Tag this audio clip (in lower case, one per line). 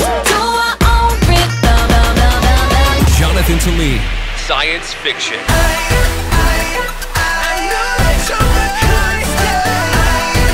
music
speech
soundtrack music